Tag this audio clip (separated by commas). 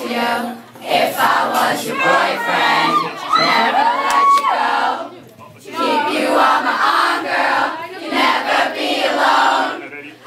Speech, Female singing